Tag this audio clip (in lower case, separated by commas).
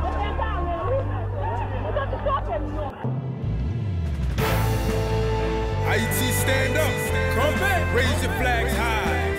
music, speech